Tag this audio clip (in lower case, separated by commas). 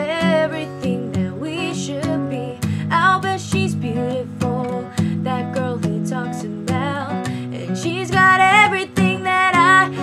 guitar, acoustic guitar, strum, music, musical instrument, plucked string instrument